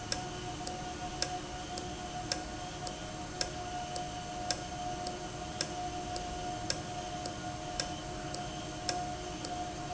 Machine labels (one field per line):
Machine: valve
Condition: normal